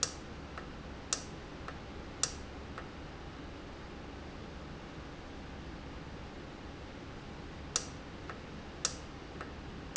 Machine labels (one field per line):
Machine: valve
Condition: normal